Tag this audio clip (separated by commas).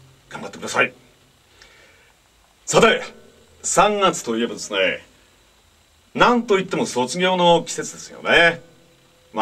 Speech